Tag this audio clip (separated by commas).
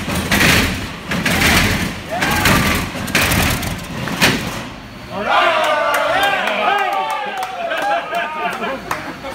Vehicle, Speech, Truck